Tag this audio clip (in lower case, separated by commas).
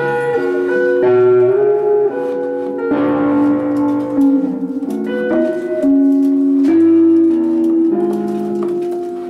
saxophone, brass instrument